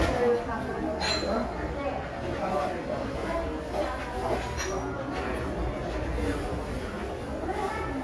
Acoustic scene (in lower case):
crowded indoor space